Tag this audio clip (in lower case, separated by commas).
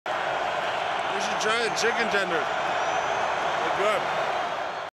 speech